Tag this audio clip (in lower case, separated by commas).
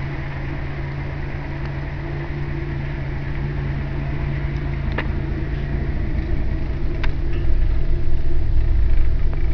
vehicle, car